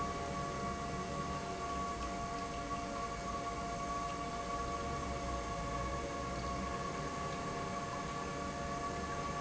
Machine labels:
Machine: pump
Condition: normal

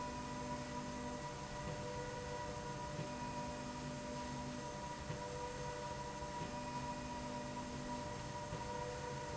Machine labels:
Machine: slide rail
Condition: normal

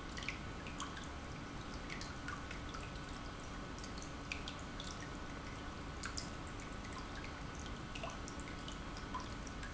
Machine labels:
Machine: pump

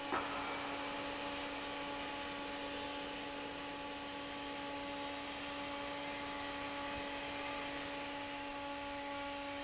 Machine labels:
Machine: fan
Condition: normal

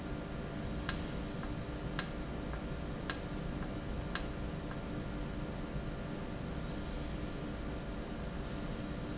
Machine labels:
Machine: valve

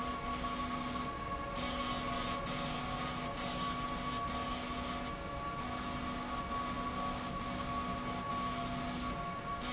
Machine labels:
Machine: slide rail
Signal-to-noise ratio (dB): -6 dB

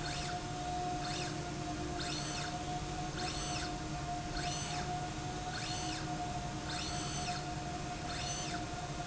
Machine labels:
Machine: slide rail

